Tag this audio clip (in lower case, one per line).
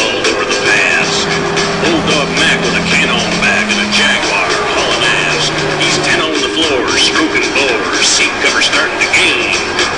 music
vehicle
truck